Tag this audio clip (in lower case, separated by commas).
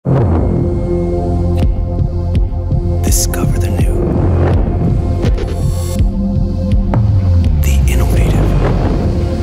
music, speech